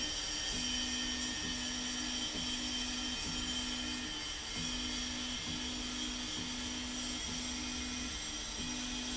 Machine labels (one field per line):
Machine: slide rail